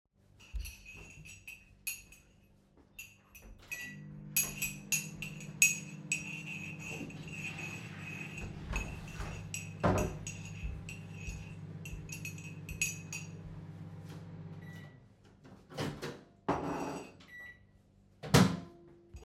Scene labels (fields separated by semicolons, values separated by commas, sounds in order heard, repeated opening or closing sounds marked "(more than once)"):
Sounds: cutlery and dishes, microwave, toilet flushing